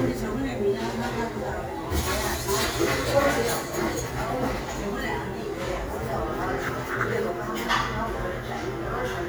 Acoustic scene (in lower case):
cafe